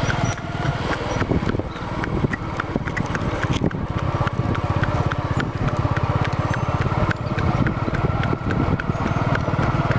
A small squeaking, wind on a microphone, and persistent, rhythmic clicking